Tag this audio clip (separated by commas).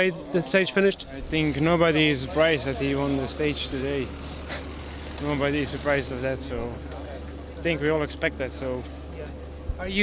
Speech